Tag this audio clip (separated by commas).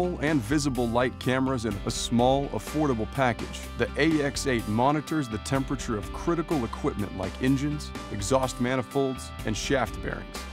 Music, Speech